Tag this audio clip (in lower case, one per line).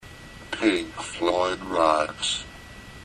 human voice